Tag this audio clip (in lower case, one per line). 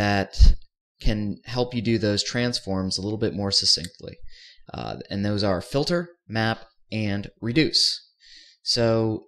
speech